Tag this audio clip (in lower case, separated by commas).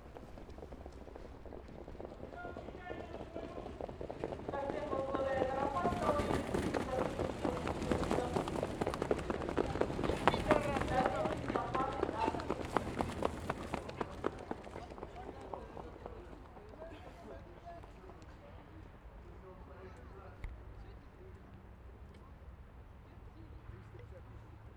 livestock, animal